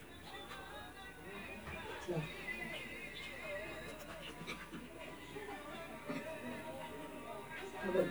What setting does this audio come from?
restaurant